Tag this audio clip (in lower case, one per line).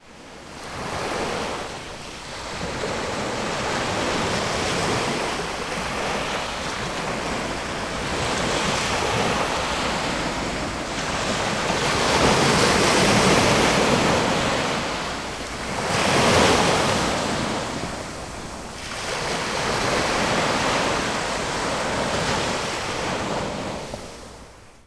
water
waves
ocean